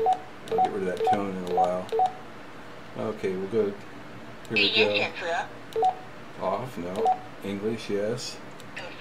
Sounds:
telephone dialing, speech

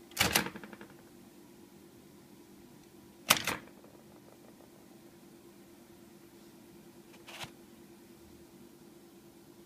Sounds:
typing on typewriter

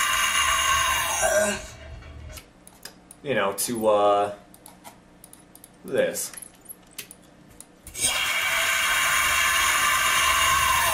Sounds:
speech

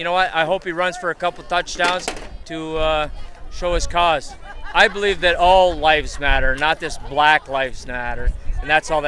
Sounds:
people booing

